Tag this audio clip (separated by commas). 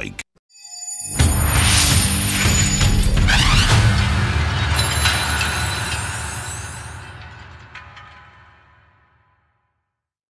Music, Speech